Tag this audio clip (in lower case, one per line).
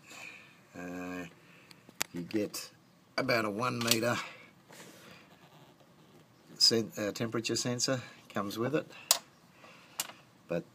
speech